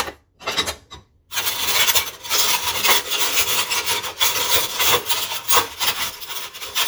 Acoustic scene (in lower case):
kitchen